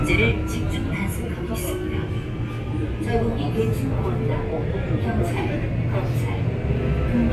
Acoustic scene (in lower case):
subway train